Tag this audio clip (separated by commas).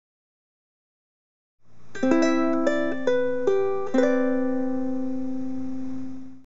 Music